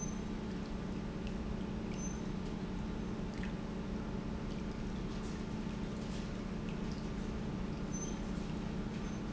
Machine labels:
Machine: pump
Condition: normal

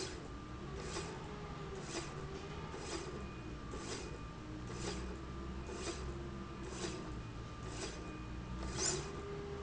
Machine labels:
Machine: slide rail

